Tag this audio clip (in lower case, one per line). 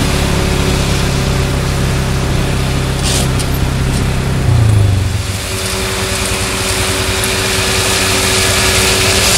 vehicle
outside, rural or natural